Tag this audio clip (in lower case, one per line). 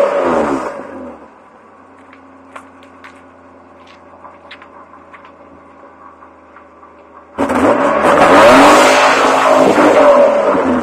vehicle
car